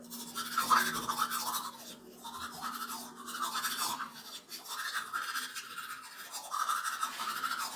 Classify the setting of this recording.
restroom